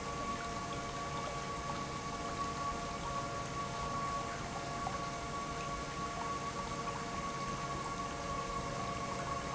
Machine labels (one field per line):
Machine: pump